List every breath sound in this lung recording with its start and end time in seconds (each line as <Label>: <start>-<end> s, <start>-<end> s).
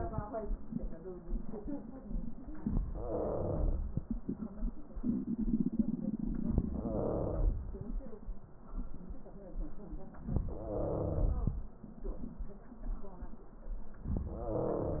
Wheeze: 2.88-3.88 s, 6.66-7.67 s, 10.63-11.36 s, 14.32-15.00 s